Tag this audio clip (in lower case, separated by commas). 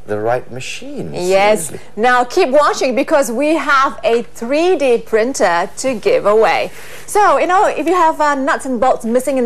speech